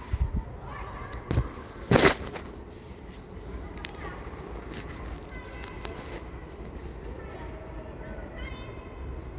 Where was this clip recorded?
in a residential area